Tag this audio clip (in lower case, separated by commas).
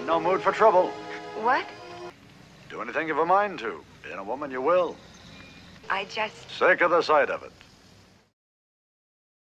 vehicle, car, speech, music